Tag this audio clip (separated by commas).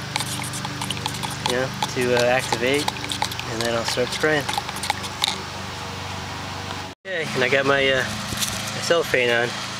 Speech, outside, rural or natural